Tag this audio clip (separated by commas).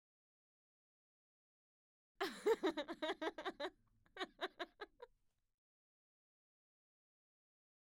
Human voice, Laughter